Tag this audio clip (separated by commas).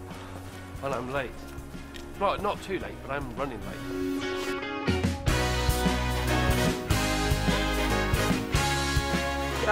Speech, Music